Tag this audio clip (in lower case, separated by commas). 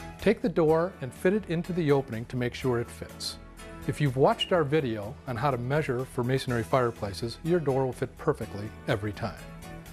speech, music